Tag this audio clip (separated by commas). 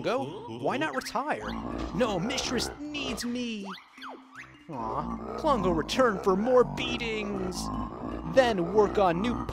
Music, Speech, outside, rural or natural